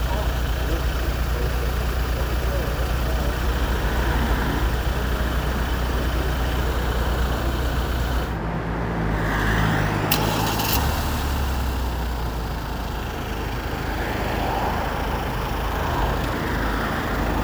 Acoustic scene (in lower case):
street